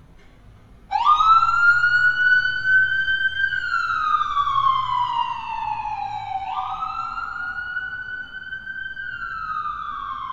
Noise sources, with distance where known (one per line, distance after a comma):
siren, near